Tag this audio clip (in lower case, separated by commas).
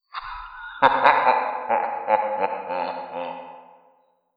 laughter, human voice